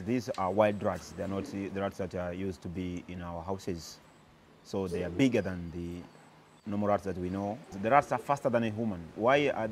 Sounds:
Speech

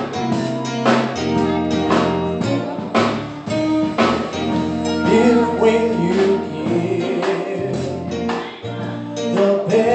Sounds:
Music, Male singing

